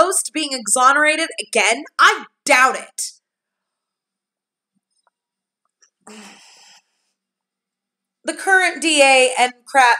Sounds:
inside a small room, Speech, Silence

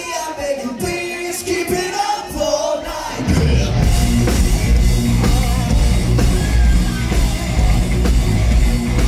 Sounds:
Music

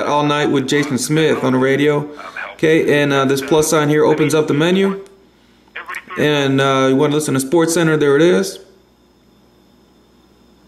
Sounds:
Speech

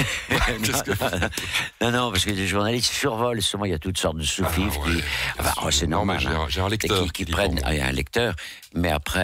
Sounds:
Speech, Radio

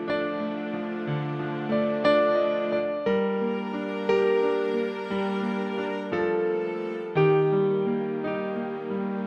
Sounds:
Music

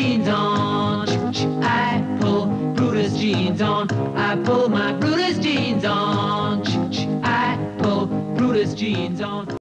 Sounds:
Music

